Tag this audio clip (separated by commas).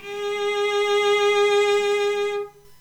Music, Musical instrument, Bowed string instrument